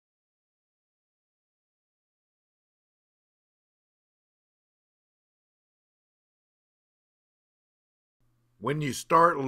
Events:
[8.15, 9.45] mechanisms
[8.58, 9.45] male speech

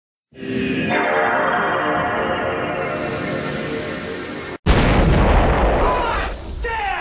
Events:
[0.31, 4.62] music
[4.66, 6.37] explosion
[5.77, 7.00] male speech
[6.35, 7.00] background noise

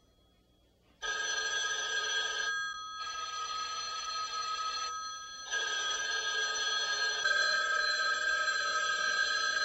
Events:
[0.00, 0.79] telephone bell ringing
[0.00, 9.64] background noise
[1.01, 9.64] telephone bell ringing

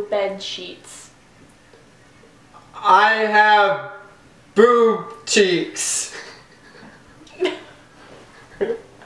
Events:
[0.00, 6.17] conversation
[0.00, 9.05] background noise
[0.04, 1.11] female speech
[1.34, 1.48] generic impact sounds
[1.68, 1.79] generic impact sounds
[1.88, 2.26] human voice
[2.15, 2.26] generic impact sounds
[2.52, 4.18] man speaking
[4.54, 6.20] man speaking
[5.03, 5.16] generic impact sounds
[6.11, 6.99] laughter
[6.76, 6.86] generic impact sounds
[7.21, 7.74] human voice
[7.94, 9.05] laughter

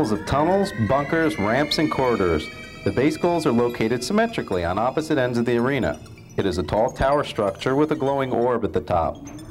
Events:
[0.00, 9.50] mechanisms
[0.00, 2.46] male speech
[2.79, 5.90] male speech
[6.36, 9.08] male speech

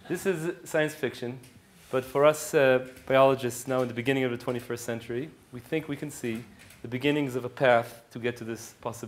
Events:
[0.00, 1.54] male speech
[0.00, 9.05] background noise
[1.37, 1.54] generic impact sounds
[1.87, 5.29] male speech
[2.79, 2.98] generic impact sounds
[5.51, 6.50] male speech
[6.53, 6.89] generic impact sounds
[6.79, 7.88] male speech
[8.13, 9.05] male speech

